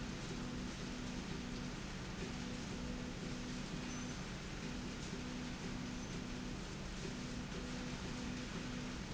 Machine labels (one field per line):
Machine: slide rail